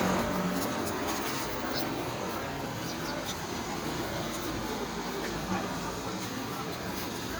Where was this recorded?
on a street